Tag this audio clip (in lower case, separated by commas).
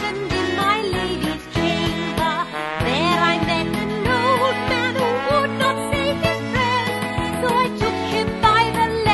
music, music for children